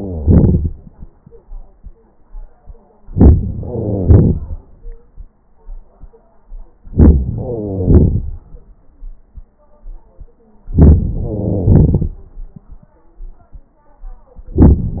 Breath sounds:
3.01-3.65 s: inhalation
3.66-5.15 s: exhalation
6.89-7.35 s: inhalation
7.35-9.29 s: exhalation
10.70-11.13 s: inhalation
11.11-12.80 s: exhalation

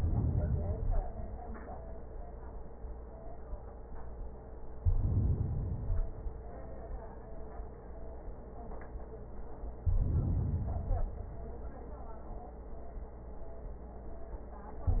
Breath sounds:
0.00-1.27 s: inhalation
4.76-6.22 s: inhalation
9.79-11.26 s: inhalation

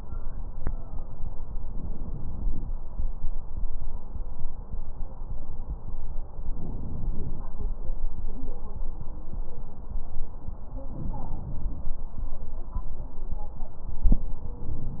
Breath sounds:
1.61-2.69 s: inhalation
6.47-7.56 s: inhalation
10.89-11.97 s: inhalation

